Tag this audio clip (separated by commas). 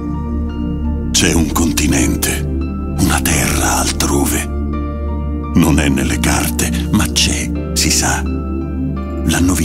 Music, Speech